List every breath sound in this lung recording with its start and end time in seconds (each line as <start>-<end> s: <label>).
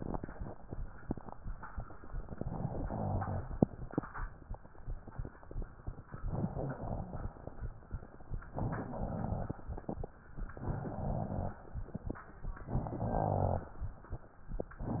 2.26-3.44 s: inhalation
2.54-3.72 s: rhonchi
6.17-7.34 s: inhalation
6.17-7.34 s: crackles
8.48-9.66 s: inhalation
8.48-9.66 s: crackles
10.51-11.69 s: inhalation
10.80-11.67 s: rhonchi
12.66-13.83 s: inhalation
12.66-13.83 s: rhonchi